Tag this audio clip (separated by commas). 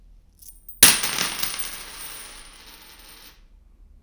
home sounds, Coin (dropping)